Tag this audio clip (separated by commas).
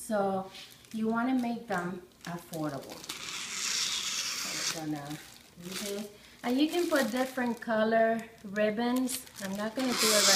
inside a small room, Speech